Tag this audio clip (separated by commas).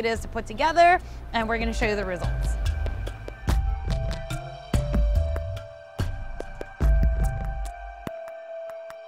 Music, Speech